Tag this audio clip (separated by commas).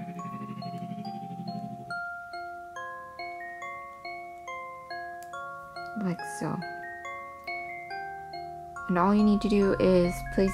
Music, Glockenspiel, Speech, inside a small room